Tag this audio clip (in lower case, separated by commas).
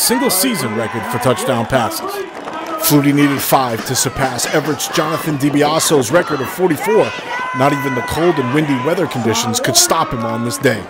music, speech